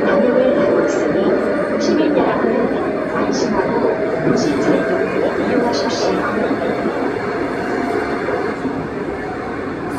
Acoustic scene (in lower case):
subway train